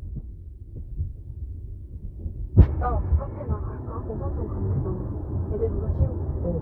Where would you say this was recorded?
in a car